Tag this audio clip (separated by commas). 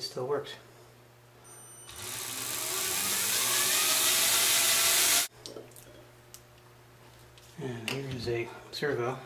auto racing, Speech